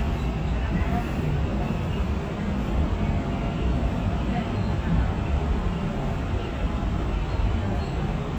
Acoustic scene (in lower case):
subway train